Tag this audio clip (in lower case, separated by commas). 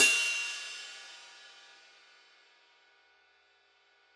cymbal, musical instrument, music, hi-hat, percussion